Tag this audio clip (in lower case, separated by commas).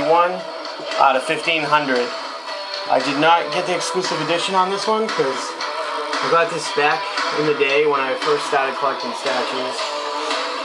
speech, music